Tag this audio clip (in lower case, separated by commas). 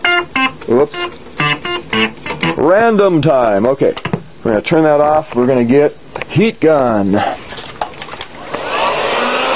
speech, music, synthesizer